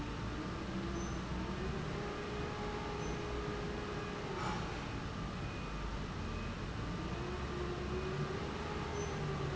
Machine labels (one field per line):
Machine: fan